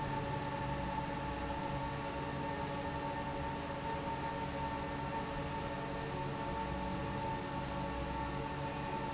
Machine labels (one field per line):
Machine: fan